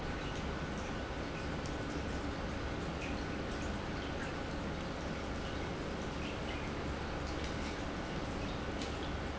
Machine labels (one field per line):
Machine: pump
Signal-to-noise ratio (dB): -6 dB